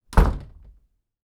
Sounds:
home sounds, Door, Wood, Slam

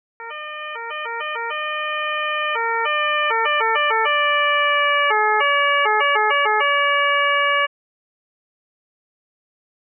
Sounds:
Siren, Motor vehicle (road), Vehicle, Alarm

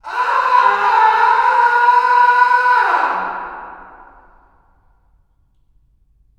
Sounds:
Human voice, Screaming

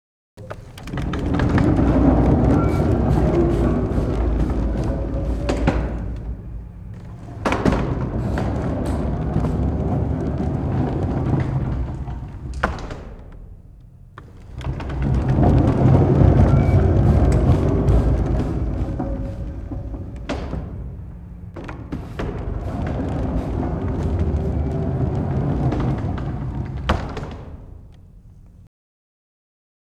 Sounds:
Door, Sliding door, home sounds

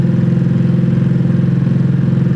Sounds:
Engine

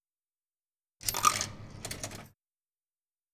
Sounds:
Coin (dropping), Domestic sounds

